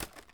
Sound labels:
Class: object falling